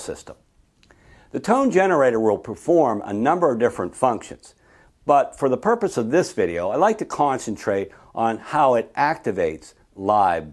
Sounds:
Speech

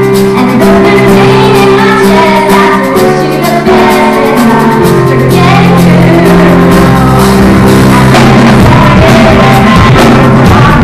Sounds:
Female singing, Music

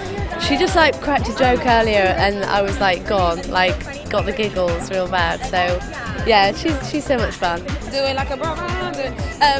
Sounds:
Exciting music, Dance music, Speech, Music, Funk

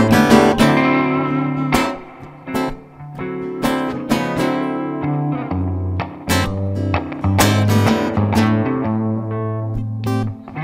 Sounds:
Music

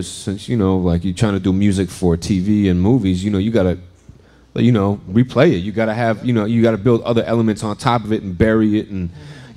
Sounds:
Speech

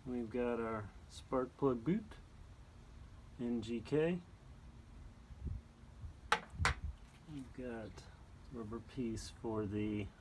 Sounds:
Speech

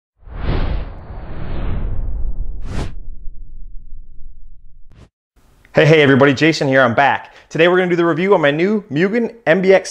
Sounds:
Speech, inside a small room

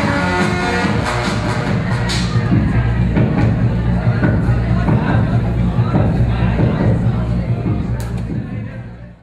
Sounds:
Music, Speech

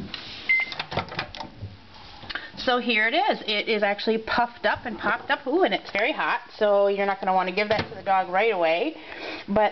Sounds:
Speech, Microwave oven

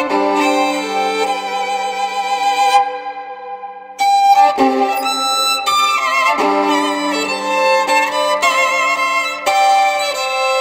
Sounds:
Musical instrument, fiddle, Music

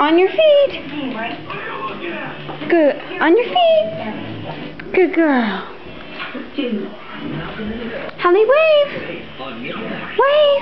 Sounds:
Speech

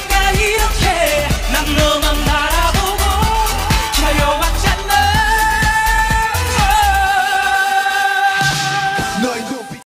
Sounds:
Music

